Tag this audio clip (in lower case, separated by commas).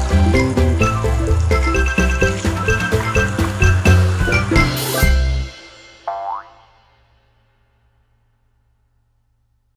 music, fill (with liquid)